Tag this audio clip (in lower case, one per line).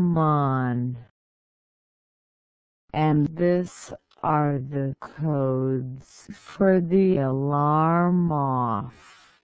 speech